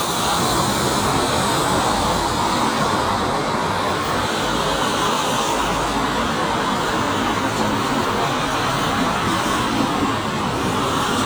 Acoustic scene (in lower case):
street